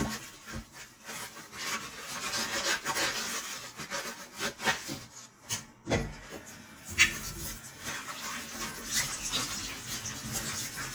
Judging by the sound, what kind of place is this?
kitchen